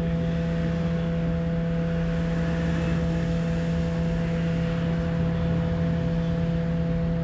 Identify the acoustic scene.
bus